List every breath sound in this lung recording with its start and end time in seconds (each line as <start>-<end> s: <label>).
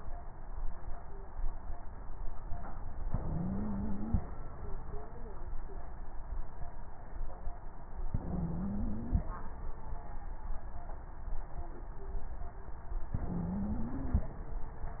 3.06-4.22 s: inhalation
3.23-4.22 s: stridor
8.13-9.27 s: stridor
8.15-9.29 s: inhalation
13.19-14.33 s: inhalation
13.19-14.33 s: stridor